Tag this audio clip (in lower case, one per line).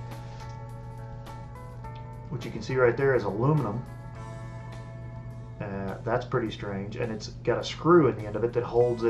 speech
music
guitar
plucked string instrument
musical instrument